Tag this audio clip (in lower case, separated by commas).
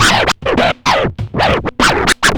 musical instrument, scratching (performance technique), music